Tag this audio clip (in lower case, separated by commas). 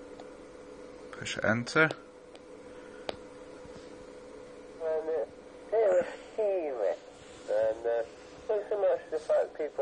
speech